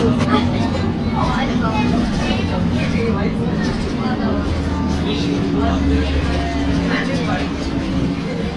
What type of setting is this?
bus